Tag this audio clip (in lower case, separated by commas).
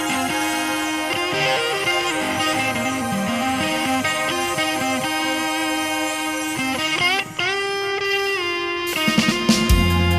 plucked string instrument, guitar, musical instrument, music